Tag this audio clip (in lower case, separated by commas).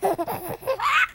human voice, laughter